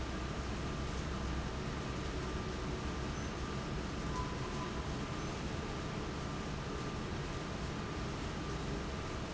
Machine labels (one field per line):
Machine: fan